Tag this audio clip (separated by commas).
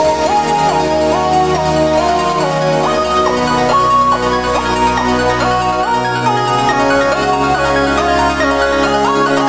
Music, Video game music